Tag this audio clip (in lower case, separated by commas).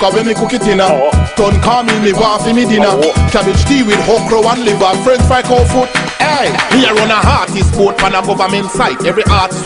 music, pop music